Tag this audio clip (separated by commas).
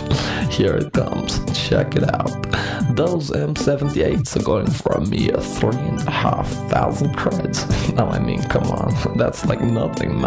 Speech, Music